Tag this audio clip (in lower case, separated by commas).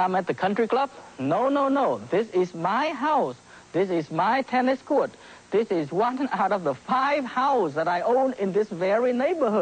speech